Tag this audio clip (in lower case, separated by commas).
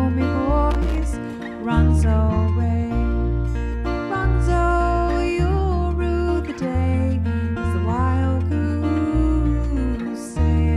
music